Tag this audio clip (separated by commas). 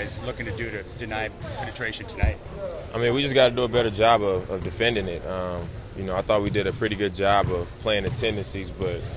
Speech